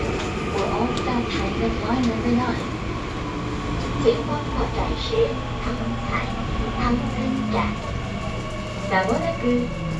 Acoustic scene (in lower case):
subway train